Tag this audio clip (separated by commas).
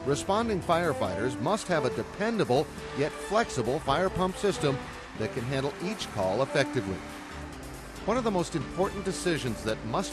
Speech, Music